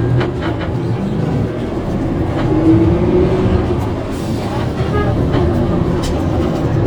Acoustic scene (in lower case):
bus